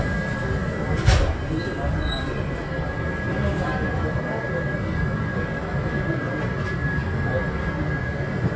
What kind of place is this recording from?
subway train